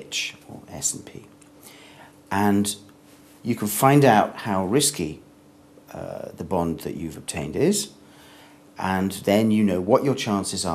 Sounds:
speech

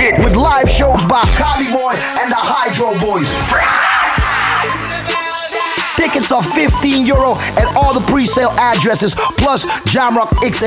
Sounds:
speech, music

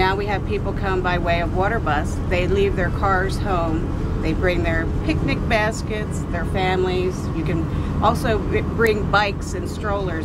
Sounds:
vehicle, speech

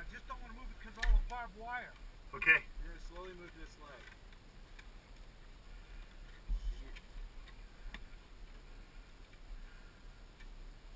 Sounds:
speech

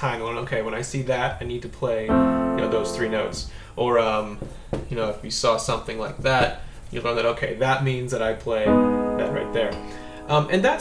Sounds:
speech, music

